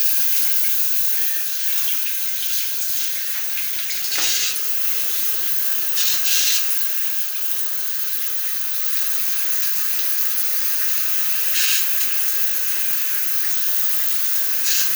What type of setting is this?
restroom